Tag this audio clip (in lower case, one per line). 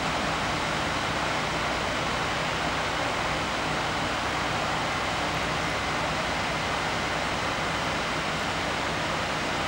surf